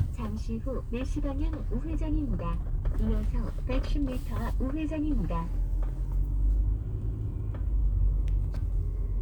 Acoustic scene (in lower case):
car